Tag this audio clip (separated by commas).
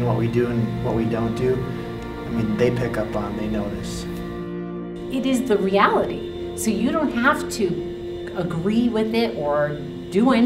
Music, Speech